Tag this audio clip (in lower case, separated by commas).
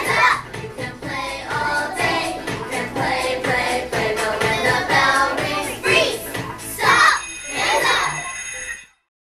music